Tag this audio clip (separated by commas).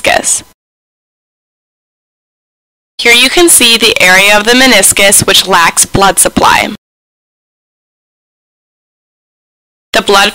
Silence, Speech